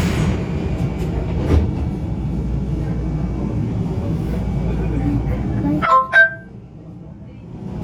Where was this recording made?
on a subway train